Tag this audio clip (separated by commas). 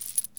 Coin (dropping), Domestic sounds